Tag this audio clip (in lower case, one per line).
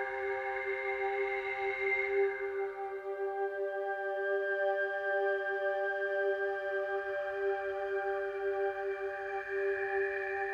music